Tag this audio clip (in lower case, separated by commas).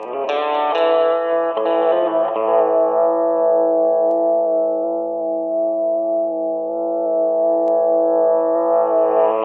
plucked string instrument, guitar, music, musical instrument